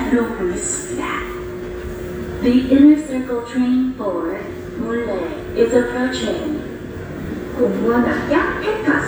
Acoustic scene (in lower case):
subway station